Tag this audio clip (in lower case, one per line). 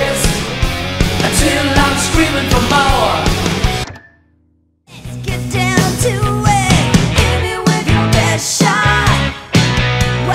guitar
electric guitar
musical instrument
music